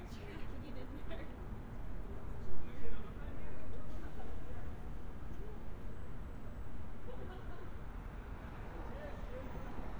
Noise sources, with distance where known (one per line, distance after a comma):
person or small group talking, far